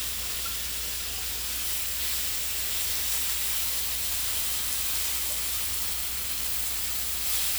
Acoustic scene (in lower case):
kitchen